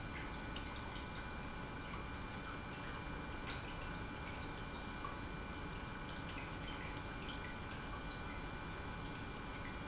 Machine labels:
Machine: pump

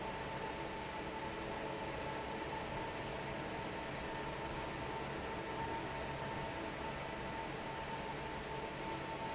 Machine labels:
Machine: fan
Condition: normal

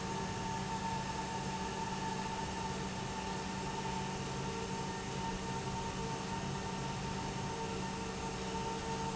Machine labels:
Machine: pump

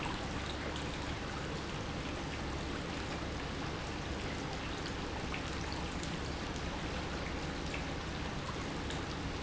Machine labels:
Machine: pump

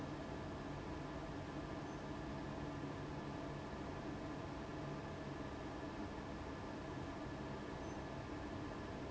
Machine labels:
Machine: fan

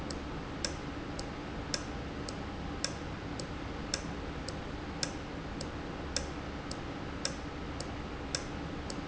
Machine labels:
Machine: valve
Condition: normal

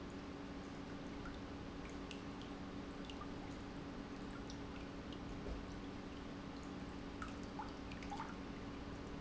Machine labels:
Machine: pump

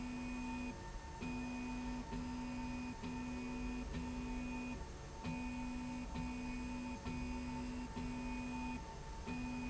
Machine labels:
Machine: slide rail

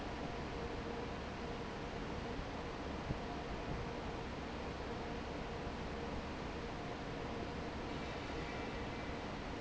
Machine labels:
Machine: fan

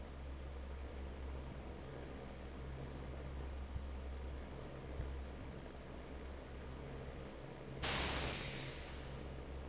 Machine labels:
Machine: fan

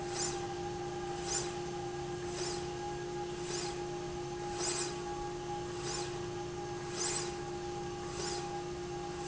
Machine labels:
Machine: slide rail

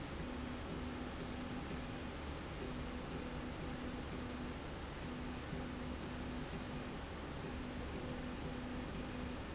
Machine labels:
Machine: slide rail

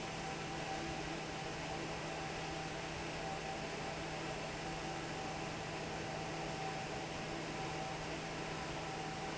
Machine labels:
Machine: fan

